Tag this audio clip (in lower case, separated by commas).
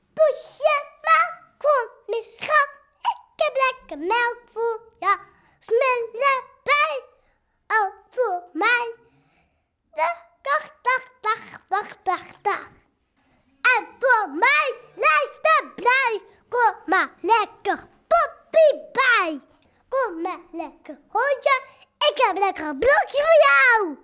human voice, singing